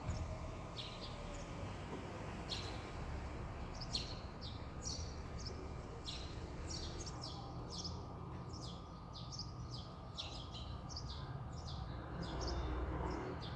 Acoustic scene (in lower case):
residential area